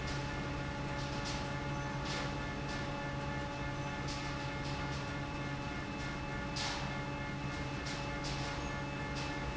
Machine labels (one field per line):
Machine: fan